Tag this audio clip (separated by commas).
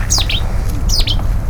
Bird, Animal, Wild animals